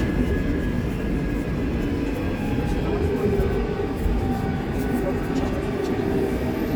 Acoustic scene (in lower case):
subway train